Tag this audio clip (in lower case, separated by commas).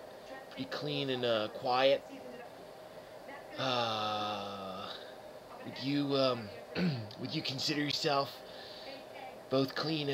speech